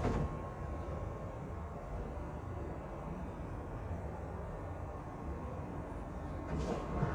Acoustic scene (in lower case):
subway train